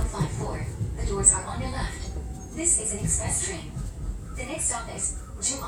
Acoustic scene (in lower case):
subway train